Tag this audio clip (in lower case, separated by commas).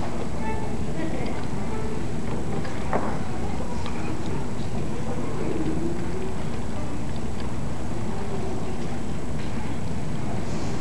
musical instrument, music, speech, fiddle